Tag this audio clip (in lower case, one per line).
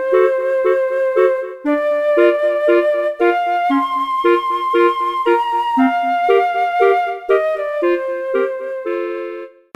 music